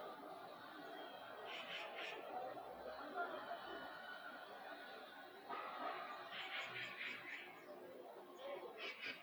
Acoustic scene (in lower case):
residential area